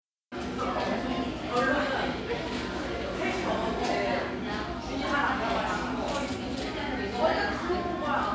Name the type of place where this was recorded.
cafe